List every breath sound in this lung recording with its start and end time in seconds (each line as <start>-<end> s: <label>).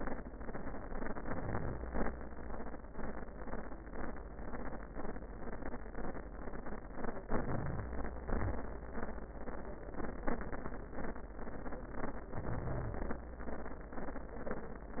1.21-1.87 s: inhalation
1.88-2.16 s: exhalation
7.26-8.27 s: inhalation
8.26-8.98 s: exhalation
12.31-13.26 s: inhalation